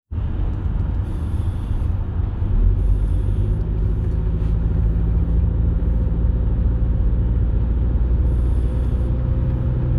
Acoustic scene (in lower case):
car